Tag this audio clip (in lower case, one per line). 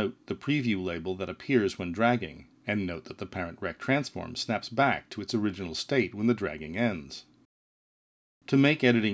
speech